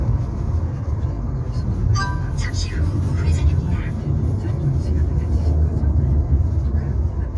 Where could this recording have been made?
in a car